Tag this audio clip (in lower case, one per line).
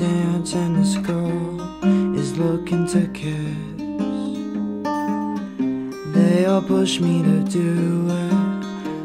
music